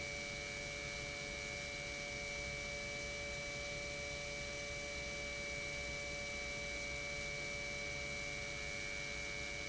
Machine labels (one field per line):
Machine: pump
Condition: normal